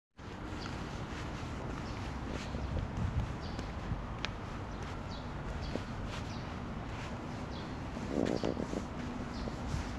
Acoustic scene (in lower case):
park